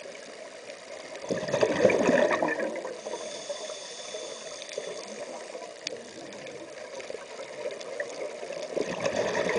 Water running and gurgling sound